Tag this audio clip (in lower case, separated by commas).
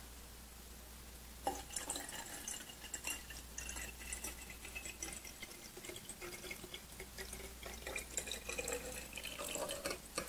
water, faucet